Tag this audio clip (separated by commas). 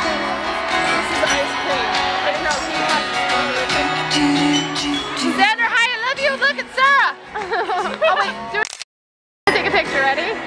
Music, Speech, Singing, inside a large room or hall